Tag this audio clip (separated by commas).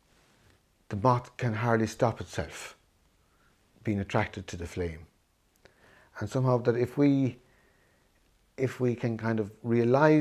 Speech